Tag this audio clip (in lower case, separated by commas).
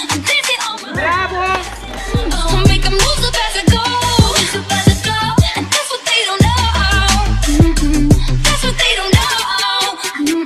music, pop music, speech